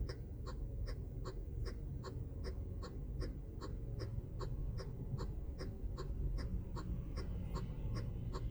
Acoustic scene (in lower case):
car